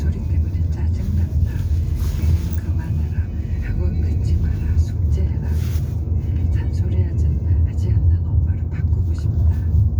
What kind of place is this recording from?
car